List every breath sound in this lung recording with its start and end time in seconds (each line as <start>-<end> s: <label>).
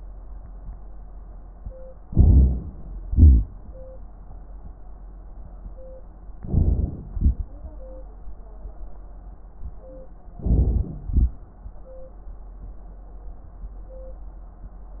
2.07-2.62 s: inhalation
3.08-3.47 s: exhalation
6.39-7.05 s: inhalation
6.39-7.05 s: crackles
7.16-7.49 s: exhalation
10.39-11.05 s: inhalation
10.39-11.05 s: crackles
11.08-11.35 s: exhalation